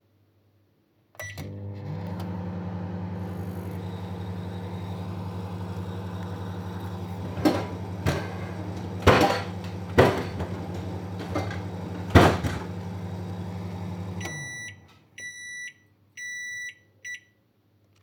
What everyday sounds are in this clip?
microwave, wardrobe or drawer